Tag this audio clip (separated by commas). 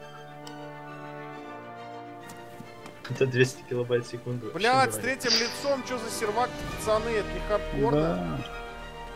Speech, Music